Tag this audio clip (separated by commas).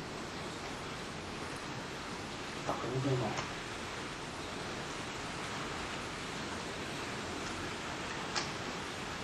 Speech, outside, rural or natural